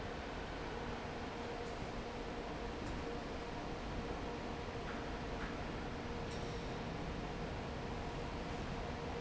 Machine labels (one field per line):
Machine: fan